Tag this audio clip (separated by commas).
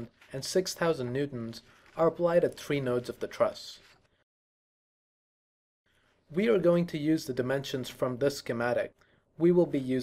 Speech